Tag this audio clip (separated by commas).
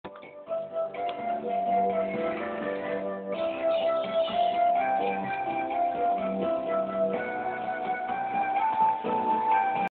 Music